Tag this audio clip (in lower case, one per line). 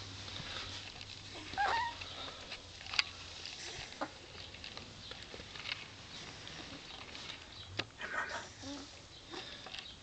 pets
animal
whimper (dog)
dog